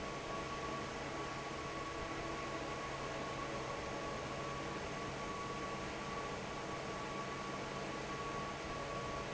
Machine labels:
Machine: fan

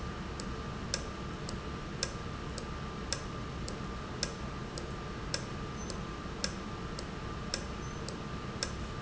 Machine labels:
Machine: valve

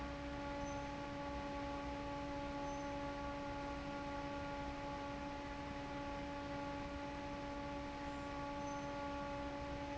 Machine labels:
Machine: fan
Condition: normal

